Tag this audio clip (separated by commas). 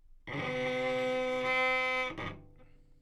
Bowed string instrument, Music, Musical instrument